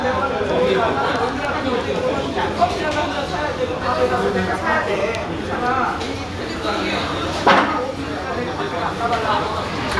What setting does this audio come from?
crowded indoor space